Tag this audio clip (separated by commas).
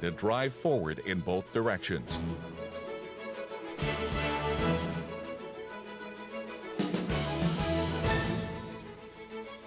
Music, Speech